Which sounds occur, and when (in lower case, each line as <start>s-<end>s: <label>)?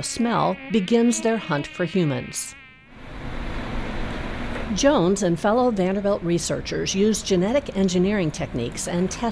0.0s-2.9s: mosquito
2.8s-9.3s: mechanisms
4.7s-9.3s: woman speaking
7.4s-7.8s: generic impact sounds